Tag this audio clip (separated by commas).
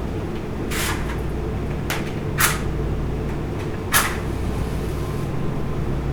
Fire